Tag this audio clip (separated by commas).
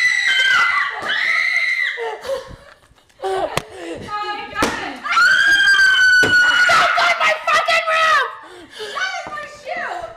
Laughter, Speech